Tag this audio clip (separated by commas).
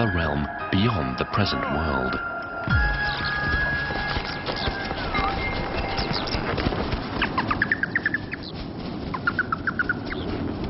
Animal, Music, Speech, Bird, outside, rural or natural